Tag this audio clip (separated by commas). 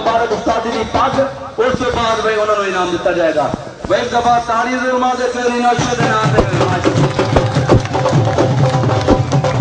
Music, Speech